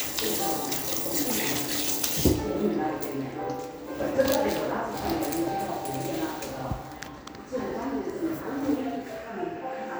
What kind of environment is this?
restroom